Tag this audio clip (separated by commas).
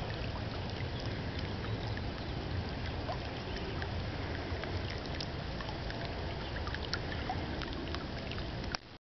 Stream, Gurgling